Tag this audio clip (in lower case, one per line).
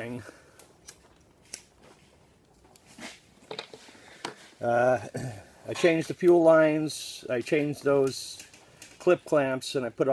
speech